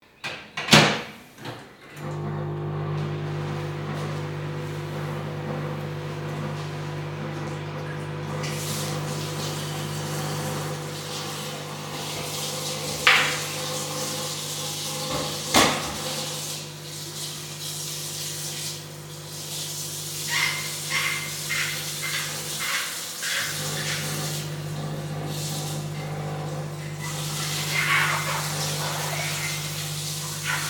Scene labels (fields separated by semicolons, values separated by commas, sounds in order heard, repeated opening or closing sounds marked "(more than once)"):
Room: kitchen; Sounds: microwave, running water, cutlery and dishes, wardrobe or drawer